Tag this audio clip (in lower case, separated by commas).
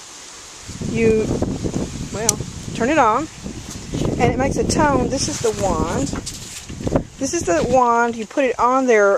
speech